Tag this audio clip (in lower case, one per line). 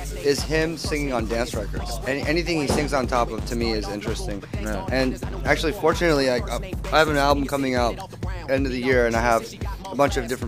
speech
inside a small room
music